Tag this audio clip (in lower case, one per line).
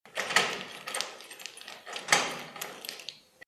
door
home sounds